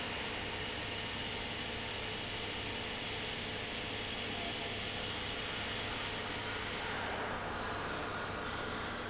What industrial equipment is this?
pump